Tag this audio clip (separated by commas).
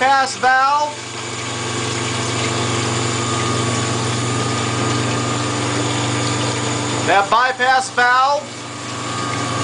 Speech